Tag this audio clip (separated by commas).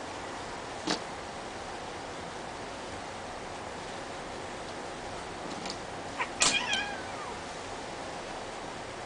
Animal, Caterwaul, Meow, pets, Cat